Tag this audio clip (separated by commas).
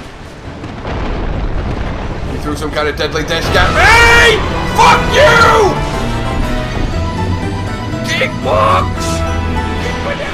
Speech, Music